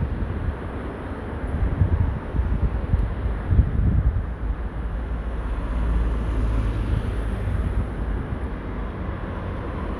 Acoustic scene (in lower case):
street